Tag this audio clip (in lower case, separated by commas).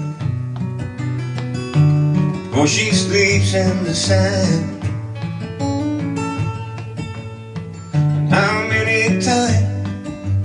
music